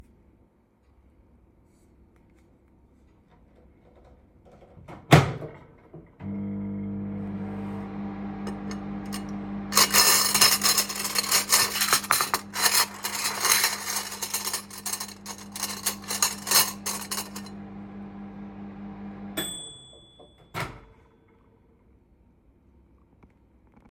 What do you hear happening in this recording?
I opened the microwave door and started the microwave. While the microwave was running I moved several spoons and plates on the kitchen counter creating cutlery sounds. The microwave continued running while the dishes were moved before the scene ended.